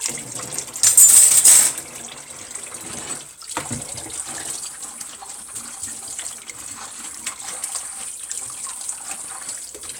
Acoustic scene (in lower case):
kitchen